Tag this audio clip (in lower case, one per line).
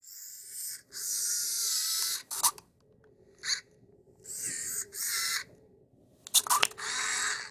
camera
mechanisms